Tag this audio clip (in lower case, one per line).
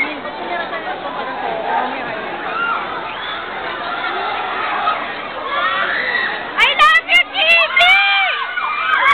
speech